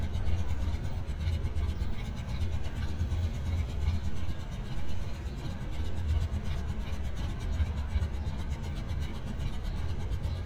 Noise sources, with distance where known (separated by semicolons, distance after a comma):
engine of unclear size, near